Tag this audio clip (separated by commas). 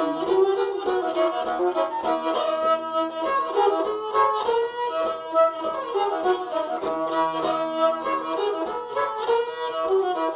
Music, Musical instrument, fiddle